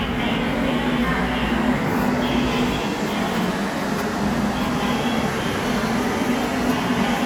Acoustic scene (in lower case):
subway station